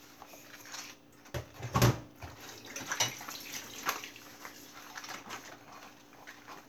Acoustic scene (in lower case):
kitchen